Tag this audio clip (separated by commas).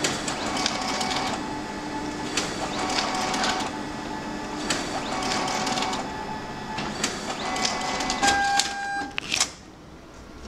inside a small room, Printer, printer printing